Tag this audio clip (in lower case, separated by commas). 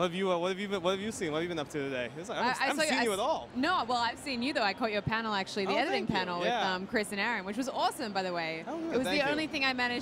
speech